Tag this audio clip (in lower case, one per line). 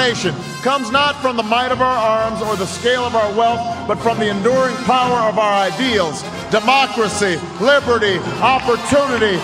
monologue
speech
music
male speech